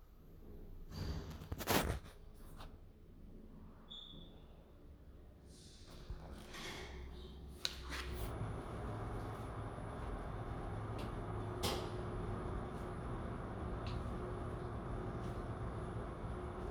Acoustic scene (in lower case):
elevator